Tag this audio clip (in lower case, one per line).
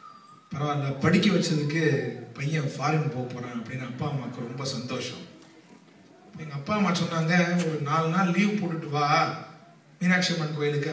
monologue
speech
male speech